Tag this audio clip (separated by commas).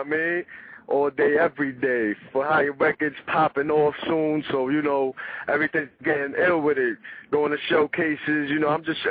Speech, Radio